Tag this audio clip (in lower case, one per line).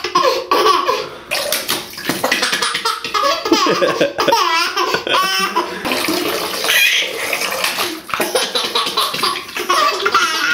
baby laughter